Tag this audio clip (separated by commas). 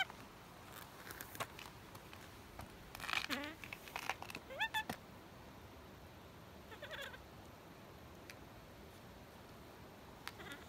outside, rural or natural